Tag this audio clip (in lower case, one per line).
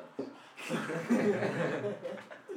laughter
human voice